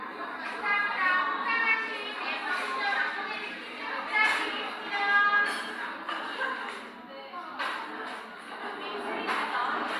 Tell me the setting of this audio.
cafe